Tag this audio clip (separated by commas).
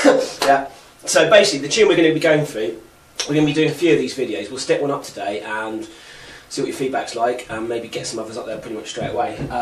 Speech